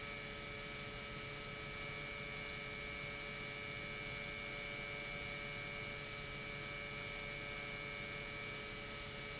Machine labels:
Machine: pump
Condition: normal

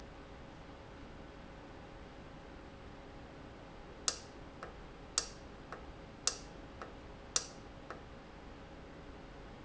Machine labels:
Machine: valve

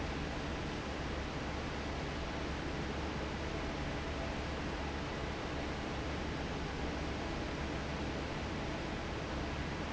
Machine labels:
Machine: fan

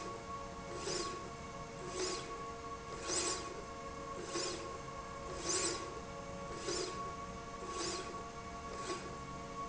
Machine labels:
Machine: slide rail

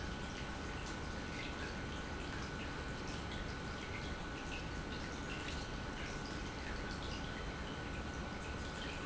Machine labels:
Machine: pump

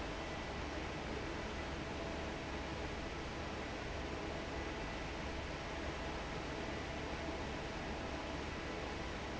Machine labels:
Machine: fan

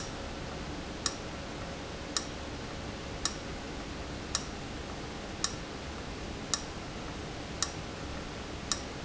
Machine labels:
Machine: valve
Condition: abnormal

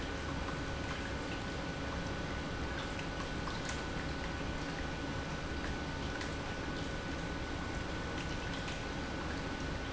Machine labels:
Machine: pump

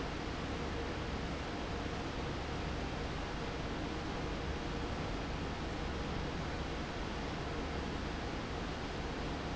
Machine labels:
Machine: fan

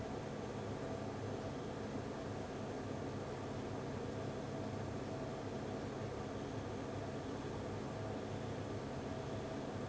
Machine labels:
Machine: fan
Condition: abnormal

